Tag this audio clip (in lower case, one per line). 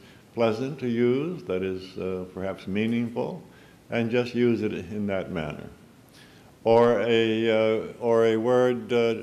speech